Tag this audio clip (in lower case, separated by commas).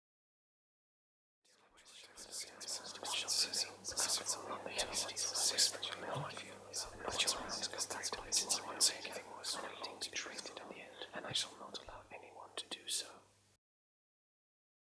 whispering, human voice